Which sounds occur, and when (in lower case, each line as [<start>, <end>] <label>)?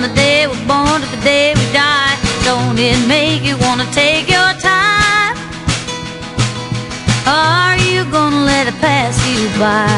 [0.01, 9.95] music
[0.05, 5.38] female singing
[7.19, 9.95] female singing